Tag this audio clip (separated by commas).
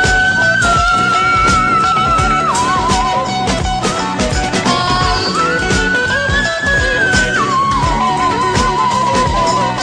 Music, Singing